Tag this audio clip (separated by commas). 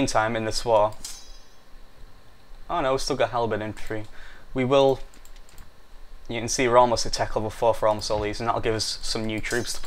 Speech